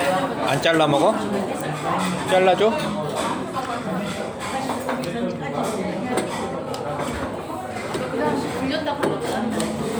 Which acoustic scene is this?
restaurant